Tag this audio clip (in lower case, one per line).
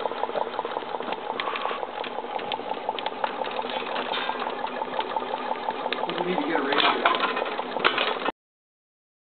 speech
engine
idling